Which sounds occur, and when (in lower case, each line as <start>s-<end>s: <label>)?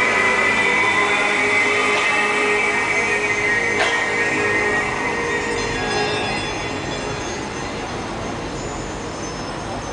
0.0s-9.9s: crowd
0.0s-9.9s: music
0.0s-9.9s: water
3.7s-4.0s: generic impact sounds